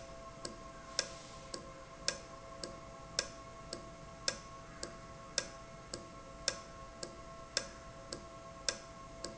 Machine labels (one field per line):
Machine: valve